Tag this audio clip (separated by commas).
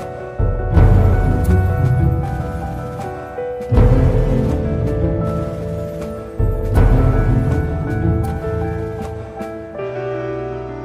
Music